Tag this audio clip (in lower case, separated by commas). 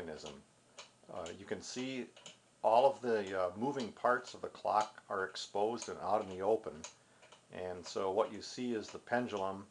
speech, tick-tock